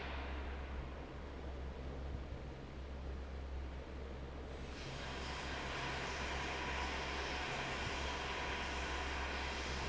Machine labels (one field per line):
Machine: fan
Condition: normal